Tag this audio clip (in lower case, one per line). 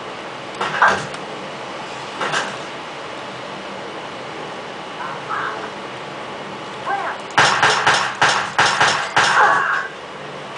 speech